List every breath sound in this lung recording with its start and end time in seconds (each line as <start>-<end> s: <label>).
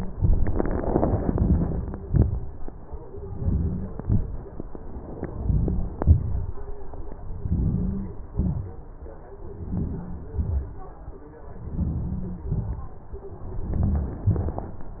1.37-1.92 s: inhalation
2.12-2.54 s: inhalation
3.38-3.87 s: inhalation
4.01-4.44 s: exhalation
5.42-5.93 s: inhalation
6.00-6.55 s: exhalation
7.48-8.07 s: inhalation
8.39-8.85 s: exhalation
9.66-10.27 s: inhalation
10.41-10.87 s: exhalation
11.80-12.44 s: inhalation
12.51-12.99 s: exhalation
13.78-14.29 s: inhalation
14.35-14.76 s: exhalation